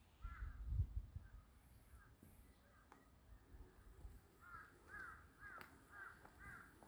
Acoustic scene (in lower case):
park